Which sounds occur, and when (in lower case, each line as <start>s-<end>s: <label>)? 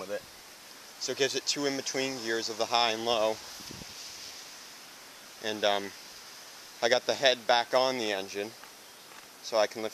0.0s-0.2s: male speech
0.0s-9.9s: wind
0.6s-0.8s: tick
1.0s-1.3s: male speech
1.5s-3.3s: male speech
3.6s-3.9s: wind noise (microphone)
5.4s-5.9s: male speech
6.8s-7.3s: male speech
7.5s-8.5s: male speech
8.5s-8.7s: generic impact sounds
9.1s-9.3s: generic impact sounds
9.4s-9.9s: male speech